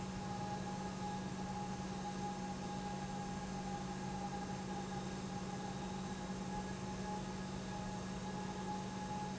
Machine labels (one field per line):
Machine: pump